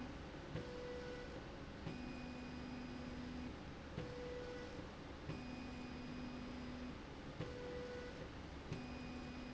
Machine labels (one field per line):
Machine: slide rail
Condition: normal